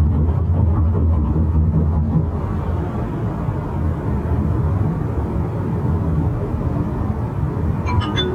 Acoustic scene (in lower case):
car